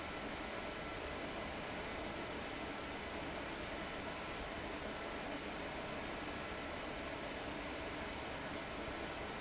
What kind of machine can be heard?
fan